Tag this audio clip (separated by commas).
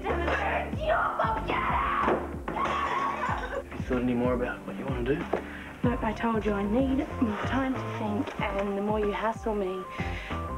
Music, Speech